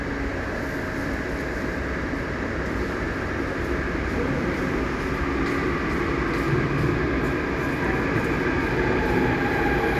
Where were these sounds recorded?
in a subway station